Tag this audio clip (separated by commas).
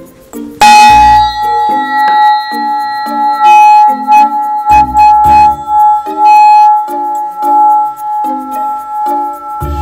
playing tuning fork